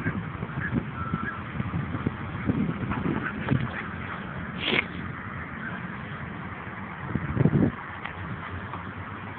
The wind is blowing and a dog barks